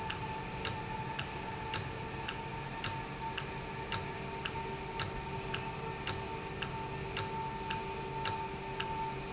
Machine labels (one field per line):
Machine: valve